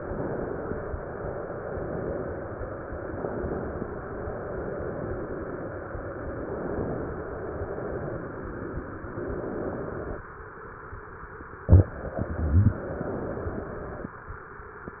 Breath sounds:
3.03-3.99 s: inhalation
4.03-6.18 s: exhalation
6.28-7.24 s: inhalation
7.26-9.07 s: exhalation
9.15-10.25 s: inhalation
12.76-14.12 s: inhalation

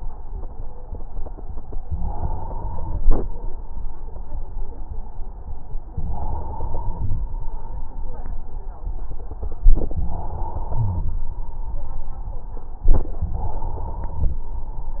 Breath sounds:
1.96-3.26 s: inhalation
5.93-7.23 s: inhalation
9.71-11.21 s: inhalation
10.75-11.17 s: wheeze
13.21-14.39 s: inhalation

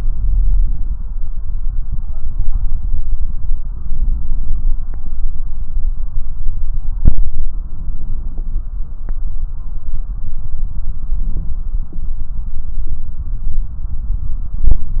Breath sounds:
7.53-8.66 s: inhalation
10.97-12.21 s: inhalation

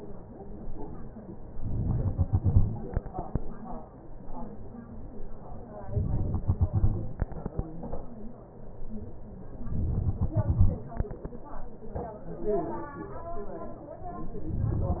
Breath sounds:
1.63-2.09 s: inhalation
2.08-3.33 s: exhalation
5.82-6.28 s: inhalation
6.27-7.52 s: exhalation
9.68-10.14 s: inhalation
10.14-11.38 s: exhalation

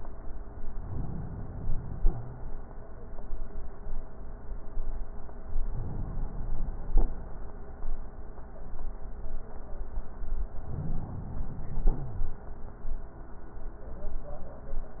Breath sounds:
0.71-2.08 s: inhalation
2.08-2.51 s: wheeze
5.68-6.89 s: inhalation
10.54-11.90 s: inhalation
11.90-12.33 s: wheeze

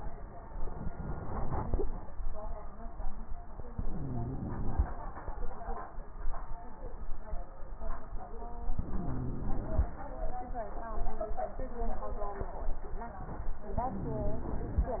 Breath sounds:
3.69-5.02 s: inhalation
3.69-5.02 s: wheeze
8.81-10.05 s: inhalation
8.81-10.05 s: wheeze
13.82-15.00 s: inhalation
13.82-15.00 s: wheeze

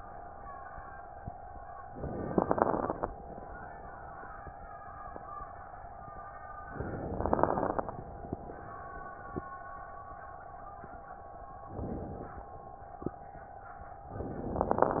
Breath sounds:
1.96-3.11 s: inhalation
1.96-3.11 s: crackles
6.72-7.88 s: inhalation
6.72-7.88 s: crackles
11.67-12.41 s: inhalation
14.06-15.00 s: inhalation
14.06-15.00 s: crackles

